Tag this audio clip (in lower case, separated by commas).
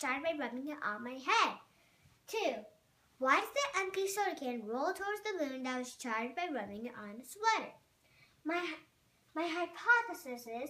speech